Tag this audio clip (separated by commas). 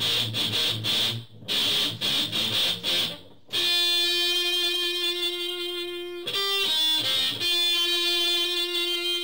Musical instrument, Plucked string instrument, Strum, Guitar, Music, Electric guitar